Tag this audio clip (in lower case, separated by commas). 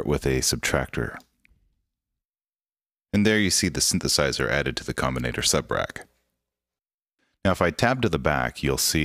speech